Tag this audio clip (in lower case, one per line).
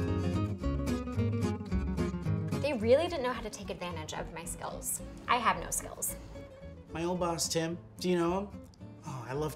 speech
music